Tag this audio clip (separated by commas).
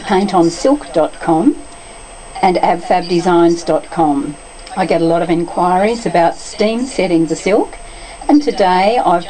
Speech